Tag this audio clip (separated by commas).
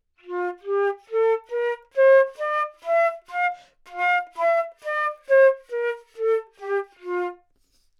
Music, woodwind instrument, Musical instrument